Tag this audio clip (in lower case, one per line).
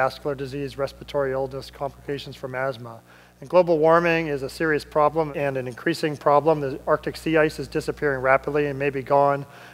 speech